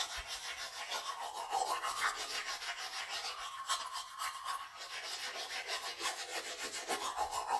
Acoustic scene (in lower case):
restroom